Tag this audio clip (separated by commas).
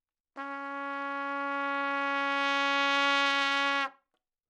Music, Brass instrument, Trumpet, Musical instrument